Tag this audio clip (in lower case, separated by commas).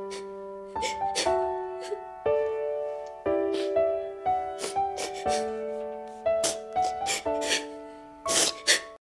music